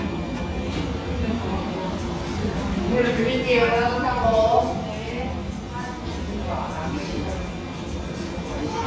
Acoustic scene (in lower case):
cafe